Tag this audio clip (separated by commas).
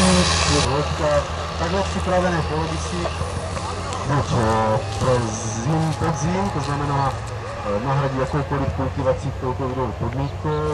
Speech